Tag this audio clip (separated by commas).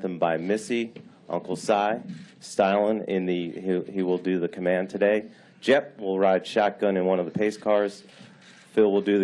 Speech